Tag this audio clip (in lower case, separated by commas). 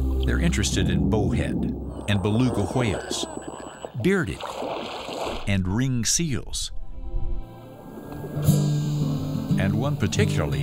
speech, whale vocalization, ocean, music